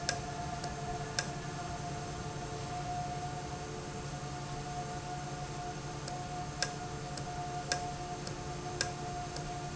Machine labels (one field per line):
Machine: valve